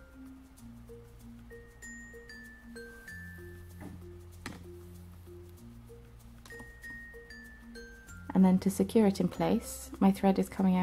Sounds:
glockenspiel, chime, mallet percussion, marimba

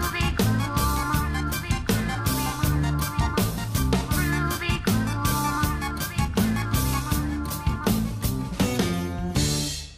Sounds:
music

